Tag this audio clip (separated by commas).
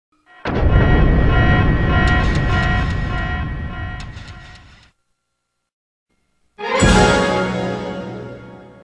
Music